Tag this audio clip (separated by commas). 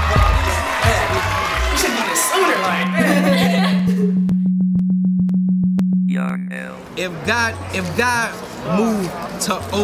Speech, Music, Singing